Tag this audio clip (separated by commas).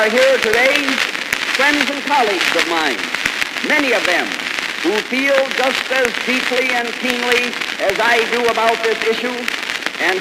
Speech, Narration, man speaking